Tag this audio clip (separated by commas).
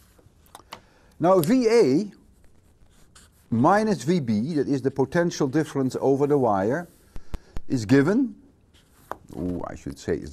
inside a small room, Speech, Writing